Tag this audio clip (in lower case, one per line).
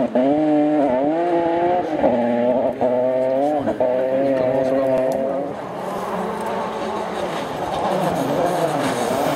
speech